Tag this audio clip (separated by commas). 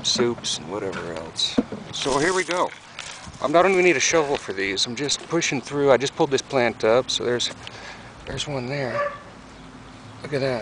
Animal